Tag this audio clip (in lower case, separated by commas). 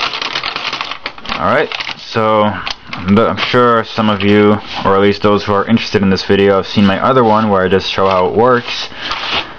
speech